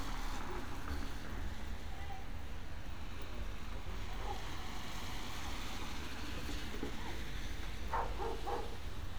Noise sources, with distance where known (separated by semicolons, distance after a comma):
dog barking or whining